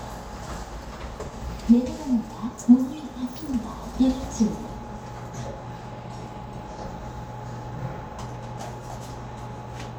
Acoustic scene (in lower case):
elevator